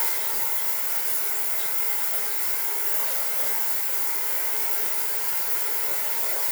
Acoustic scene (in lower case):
restroom